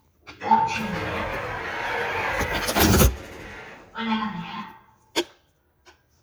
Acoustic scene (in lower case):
elevator